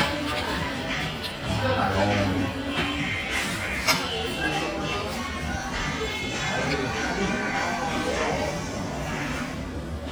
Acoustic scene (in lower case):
restaurant